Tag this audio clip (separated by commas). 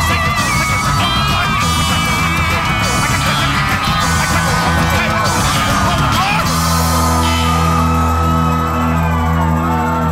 Music